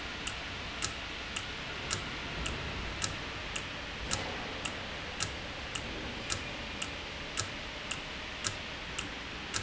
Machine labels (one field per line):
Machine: valve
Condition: normal